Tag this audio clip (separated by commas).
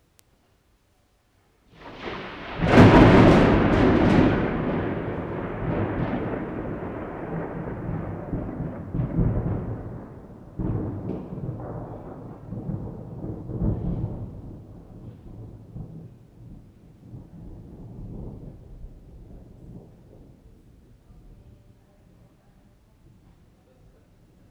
Thunderstorm, Thunder